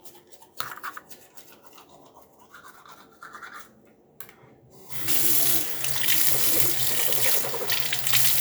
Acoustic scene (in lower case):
restroom